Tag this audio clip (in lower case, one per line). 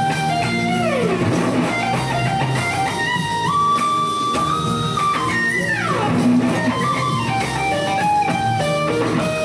plucked string instrument
music
guitar
musical instrument